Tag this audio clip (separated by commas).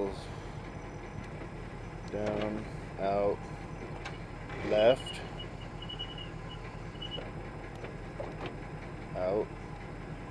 Vehicle, Speech